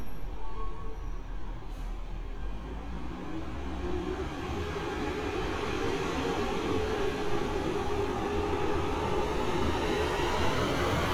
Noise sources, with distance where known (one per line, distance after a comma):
large-sounding engine, near